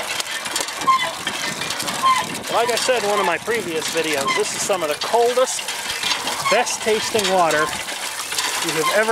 Squeaking with water splashing followed by a man speaking